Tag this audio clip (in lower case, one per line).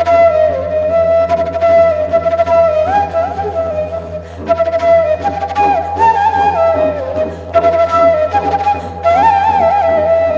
musical instrument
music
didgeridoo
flute
playing flute